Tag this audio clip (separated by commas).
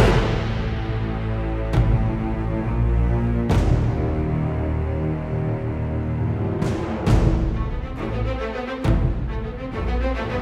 Music